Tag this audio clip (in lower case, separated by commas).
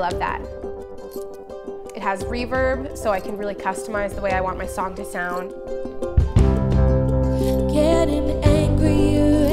music, speech